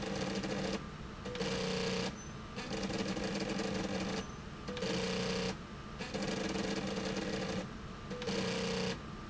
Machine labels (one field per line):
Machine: slide rail